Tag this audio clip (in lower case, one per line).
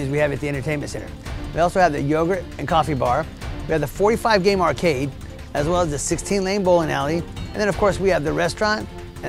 speech
music